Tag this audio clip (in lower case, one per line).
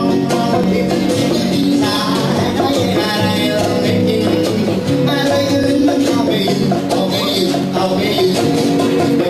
music